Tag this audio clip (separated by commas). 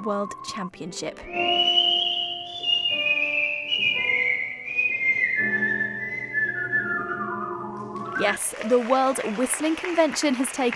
people whistling